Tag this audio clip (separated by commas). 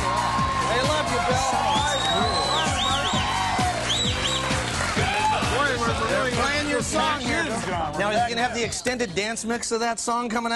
Musical instrument, Drum kit, Drum, Music, Speech